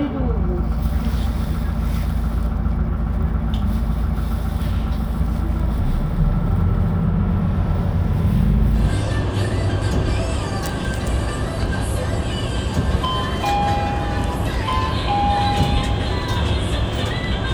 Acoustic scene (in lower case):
bus